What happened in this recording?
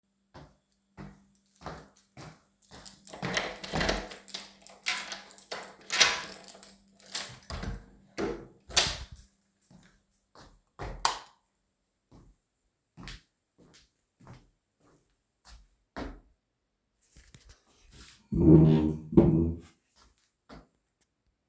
I walked to the door. I inserted the key and turned it, then I opened the door. I entered my room and switched the light on. I walked to the chair and I sat down.